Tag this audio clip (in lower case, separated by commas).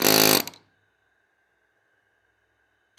tools